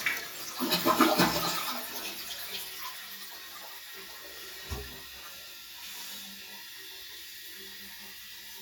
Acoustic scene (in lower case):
restroom